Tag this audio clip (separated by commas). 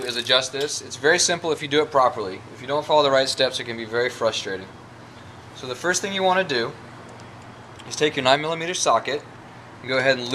Speech, Bicycle, Vehicle